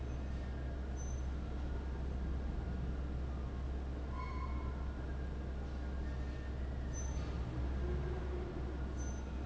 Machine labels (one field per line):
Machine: fan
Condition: abnormal